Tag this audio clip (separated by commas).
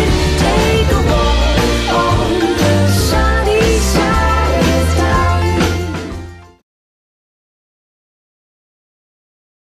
Music